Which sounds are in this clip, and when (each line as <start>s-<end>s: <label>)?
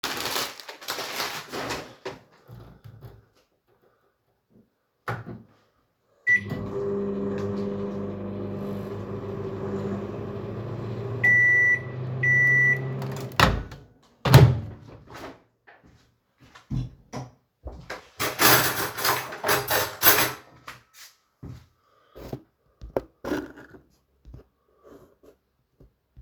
5.0s-15.3s: microwave
16.4s-18.1s: footsteps
18.1s-20.6s: cutlery and dishes
20.6s-22.4s: footsteps